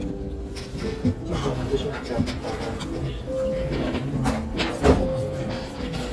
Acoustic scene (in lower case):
restaurant